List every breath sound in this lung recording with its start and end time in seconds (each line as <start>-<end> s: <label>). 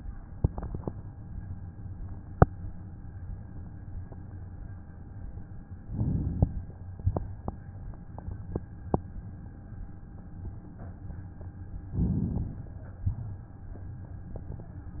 5.77-6.64 s: inhalation
11.92-12.79 s: inhalation